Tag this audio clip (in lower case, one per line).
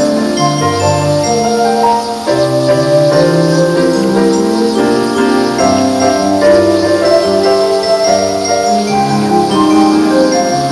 music